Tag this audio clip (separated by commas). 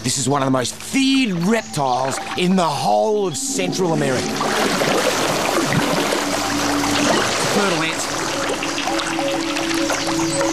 Music, Speech